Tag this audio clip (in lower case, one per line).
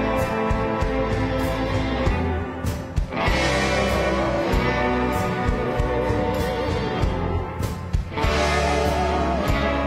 playing theremin